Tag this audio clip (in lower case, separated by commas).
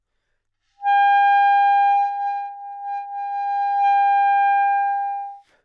music, musical instrument, wind instrument